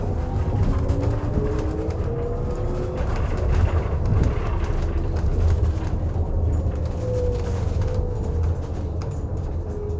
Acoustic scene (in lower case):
bus